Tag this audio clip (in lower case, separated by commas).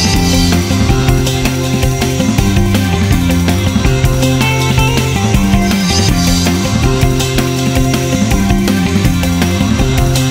music